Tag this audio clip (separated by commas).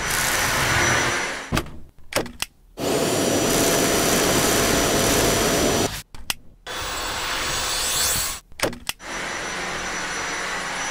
Vacuum cleaner